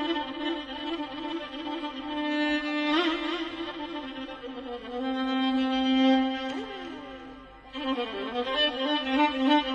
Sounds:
violin, music, musical instrument

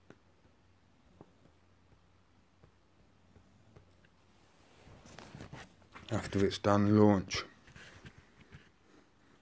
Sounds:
speech, silence, inside a small room

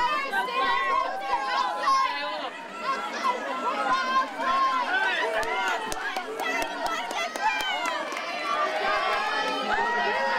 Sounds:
speech, run, outside, rural or natural

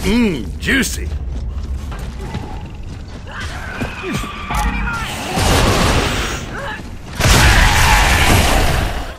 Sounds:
speech

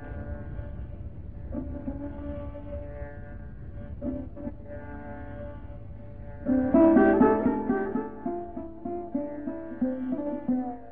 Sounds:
classical music, music, carnatic music

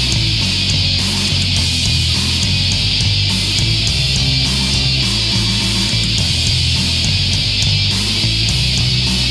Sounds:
heavy metal, punk rock, music

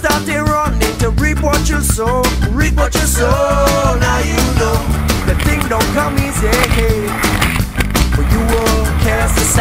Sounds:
vehicle, boat, music

